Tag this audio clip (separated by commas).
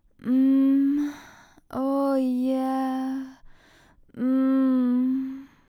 Human voice